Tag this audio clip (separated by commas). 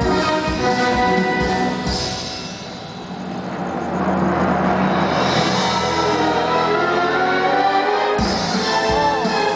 Music